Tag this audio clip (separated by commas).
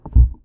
Thump